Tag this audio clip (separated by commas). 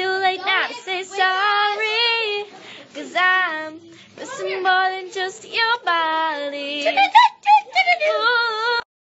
Speech, Female singing